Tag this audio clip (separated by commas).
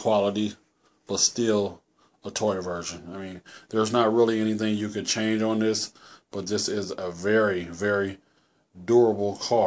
Speech